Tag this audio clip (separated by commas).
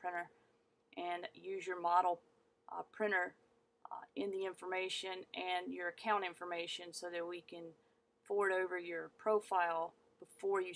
Speech